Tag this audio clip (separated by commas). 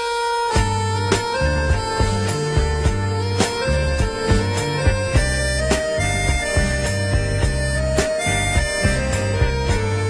Music, Bagpipes